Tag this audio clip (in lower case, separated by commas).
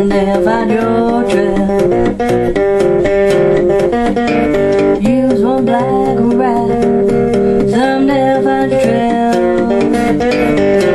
music, plucked string instrument, guitar, musical instrument, strum, playing acoustic guitar, acoustic guitar